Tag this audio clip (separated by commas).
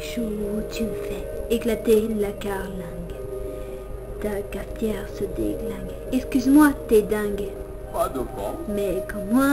Speech, Music